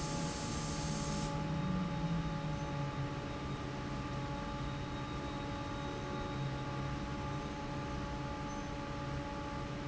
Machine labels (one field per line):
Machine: fan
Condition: normal